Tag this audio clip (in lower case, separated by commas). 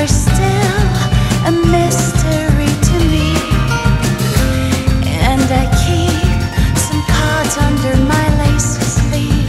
music, grunge